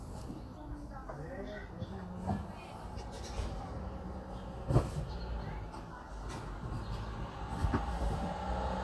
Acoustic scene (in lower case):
residential area